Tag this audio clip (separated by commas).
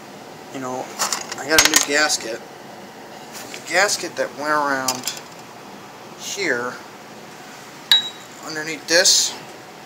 Speech, inside a small room